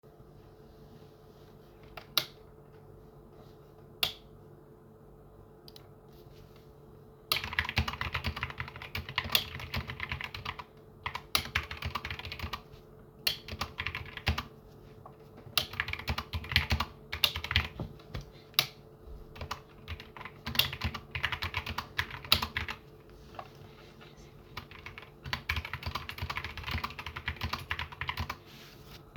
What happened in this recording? one person types while another person flips the light switch